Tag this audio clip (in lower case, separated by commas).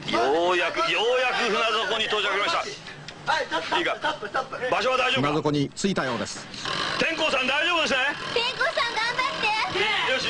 speech